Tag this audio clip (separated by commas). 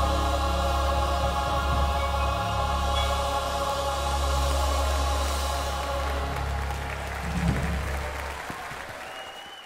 Gospel music, Music